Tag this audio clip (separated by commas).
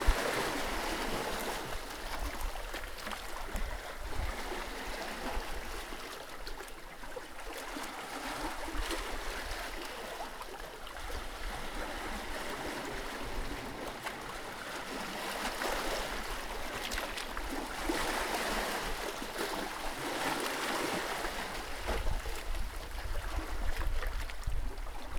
Ocean, Waves, Water